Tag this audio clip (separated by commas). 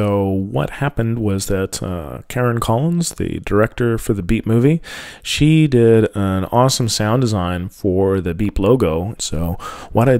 Speech